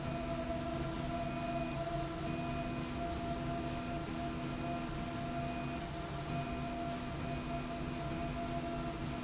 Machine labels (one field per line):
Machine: slide rail